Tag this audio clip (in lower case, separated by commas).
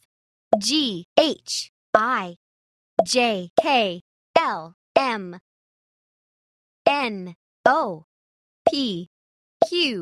plop, speech